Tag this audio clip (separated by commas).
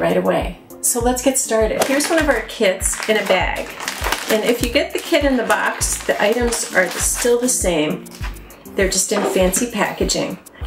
Music, Speech